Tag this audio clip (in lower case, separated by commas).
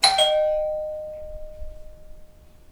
bell